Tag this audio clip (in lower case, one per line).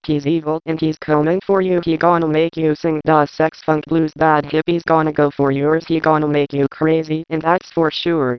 speech synthesizer
speech
human voice